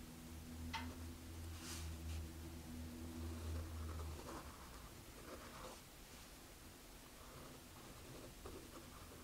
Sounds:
writing

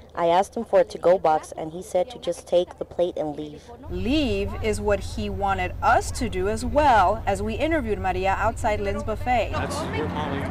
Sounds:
speech

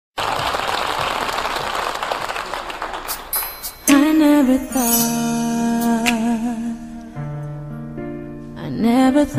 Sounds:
music, singing

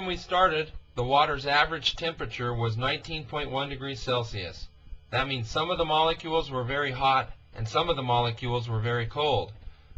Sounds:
speech

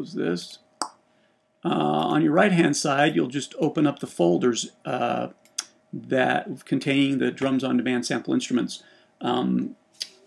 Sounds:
speech

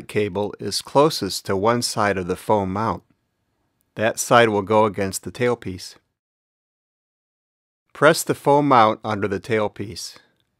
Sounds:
speech

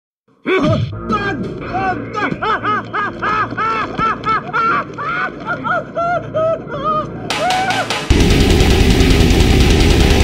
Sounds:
music, heavy metal, speech

